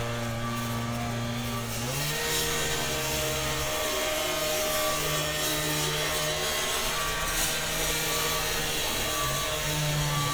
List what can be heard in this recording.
unidentified powered saw